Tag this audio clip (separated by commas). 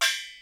Musical instrument, Music, Percussion, Gong